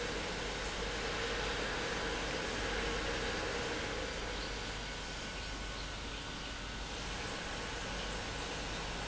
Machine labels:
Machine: pump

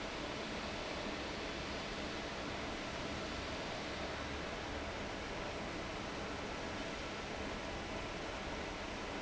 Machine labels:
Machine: fan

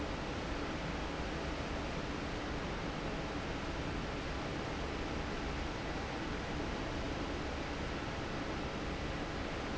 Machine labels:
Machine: fan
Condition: normal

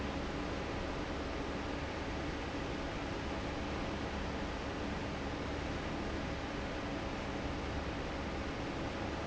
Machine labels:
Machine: fan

